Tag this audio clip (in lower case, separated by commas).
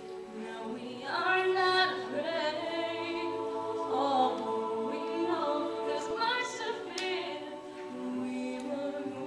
choir, a capella, singing, music